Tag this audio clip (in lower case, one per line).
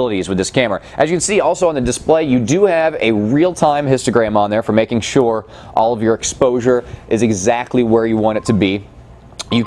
speech